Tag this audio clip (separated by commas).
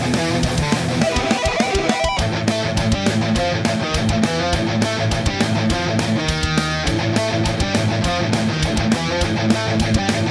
Music, Acoustic guitar, Guitar, Musical instrument, Plucked string instrument